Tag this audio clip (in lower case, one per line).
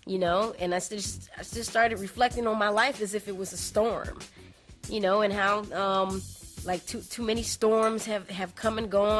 music
speech